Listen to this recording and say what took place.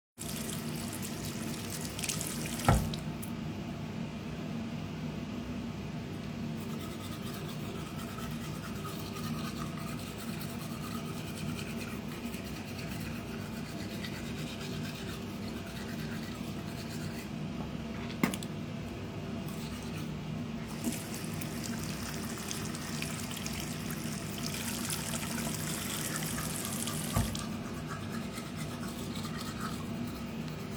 Water was running, started brushing teeth then spit the water out and again running water and brushing teeth while there is ventilation running in the background